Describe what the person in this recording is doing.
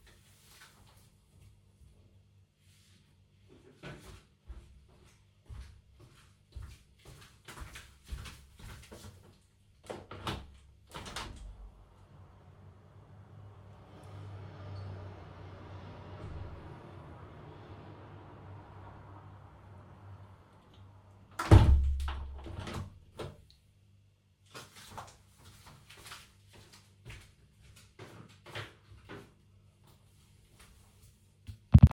I placed the phone on the kitchen counter near the window. I walked to the window and opened it then paused briefly and closed it again. My footsteps are audible during the movement. Light traffic noise from outside is audible after the window is opened.